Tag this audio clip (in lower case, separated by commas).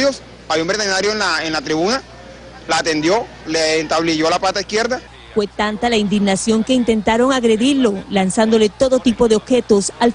speech